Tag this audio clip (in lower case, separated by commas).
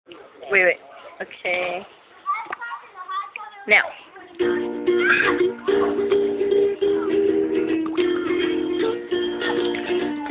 playing ukulele